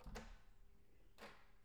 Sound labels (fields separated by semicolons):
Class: door; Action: opening